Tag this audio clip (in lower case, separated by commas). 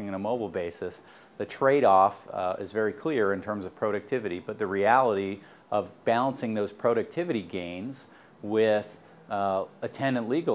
speech